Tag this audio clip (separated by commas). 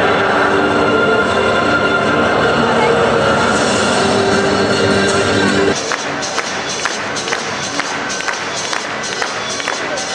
Speech, Music